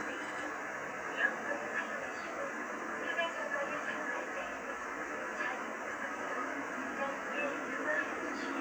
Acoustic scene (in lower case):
subway train